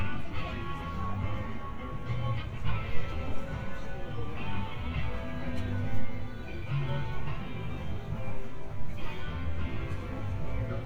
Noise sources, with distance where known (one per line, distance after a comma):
music from an unclear source, near
person or small group talking